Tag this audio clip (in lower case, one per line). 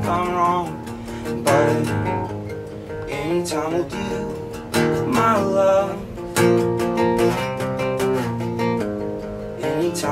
music